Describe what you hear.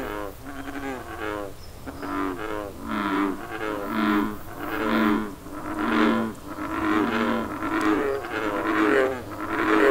Frogs are croaking and birds are chirping